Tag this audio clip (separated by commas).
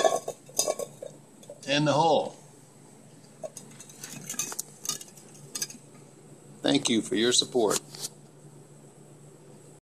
inside a small room, Speech